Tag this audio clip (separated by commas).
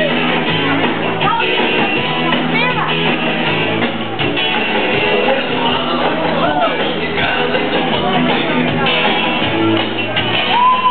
Music, Rock and roll